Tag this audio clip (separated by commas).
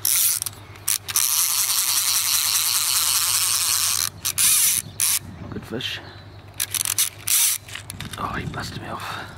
Scrape, outside, rural or natural, Animal, Speech